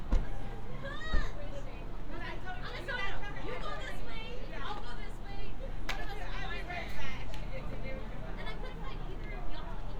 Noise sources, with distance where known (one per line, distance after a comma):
unidentified human voice, near